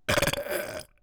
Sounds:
Burping

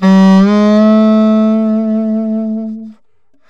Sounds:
Musical instrument, Music, Wind instrument

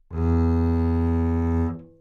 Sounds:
Music, Musical instrument, Bowed string instrument

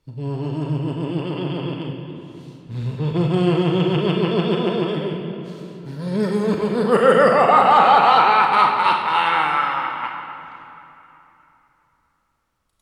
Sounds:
Human voice, Laughter

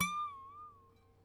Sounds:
Harp, Music, Musical instrument

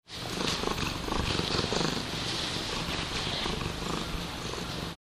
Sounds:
Purr, Animal, Cat, pets

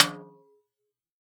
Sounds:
Snare drum, Music, Drum, Musical instrument, Percussion

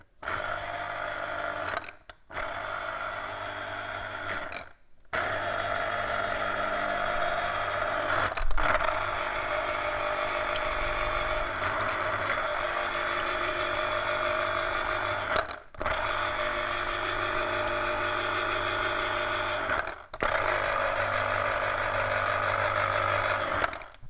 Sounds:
home sounds

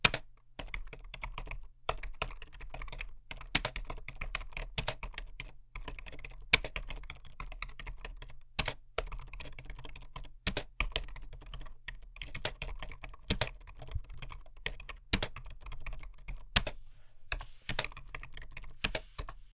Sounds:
Typing, home sounds

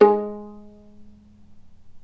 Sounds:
Bowed string instrument, Music, Musical instrument

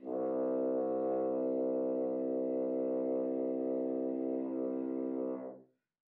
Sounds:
Music, Brass instrument, Musical instrument

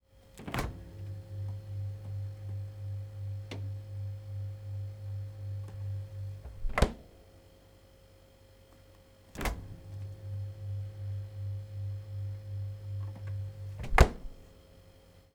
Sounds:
Slam, Door, home sounds, Engine

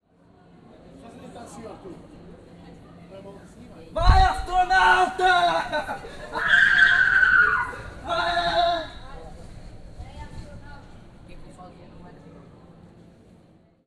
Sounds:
Human voice, Screaming

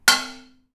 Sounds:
dishes, pots and pans, Domestic sounds

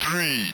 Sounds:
Speech, Speech synthesizer, Human voice

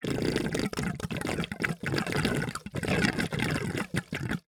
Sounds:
Water, Gurgling

